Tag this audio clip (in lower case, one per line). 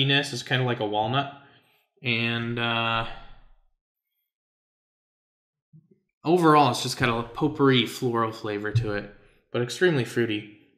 inside a large room or hall
speech